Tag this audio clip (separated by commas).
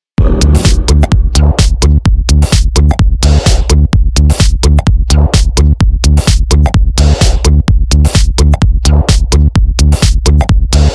Music, Techno